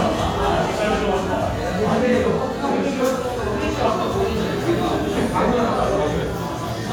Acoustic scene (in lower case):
crowded indoor space